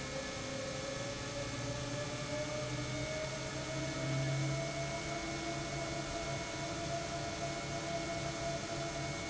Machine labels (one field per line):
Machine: pump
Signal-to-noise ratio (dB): -6 dB